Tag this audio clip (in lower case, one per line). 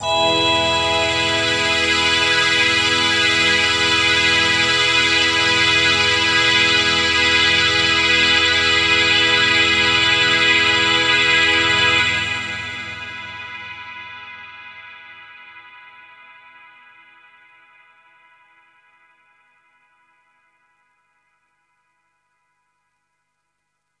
musical instrument
music